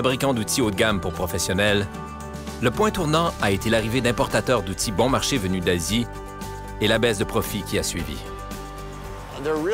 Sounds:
speech
music

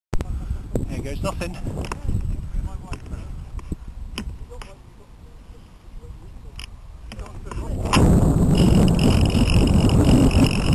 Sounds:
outside, rural or natural
speech

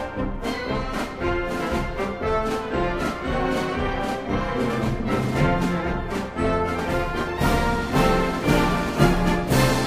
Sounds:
orchestra
music

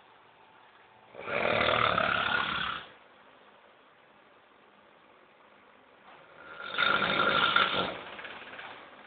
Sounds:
snoring

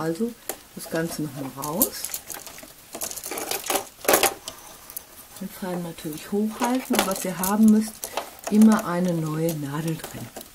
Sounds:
using sewing machines

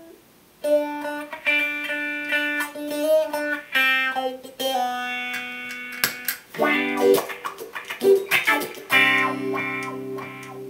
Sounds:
music
tapping (guitar technique)
effects unit
guitar

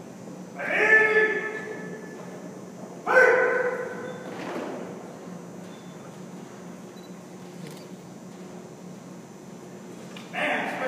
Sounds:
speech

